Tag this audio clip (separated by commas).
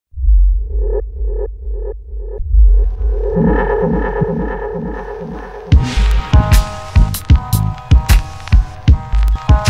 Electronic music, Music